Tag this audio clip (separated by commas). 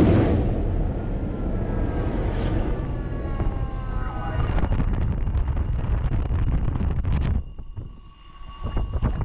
missile launch